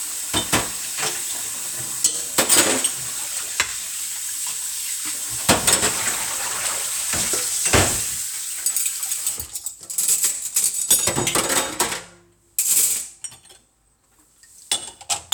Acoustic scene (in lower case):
kitchen